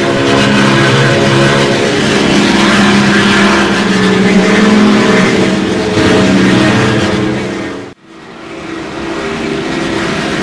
An airplane running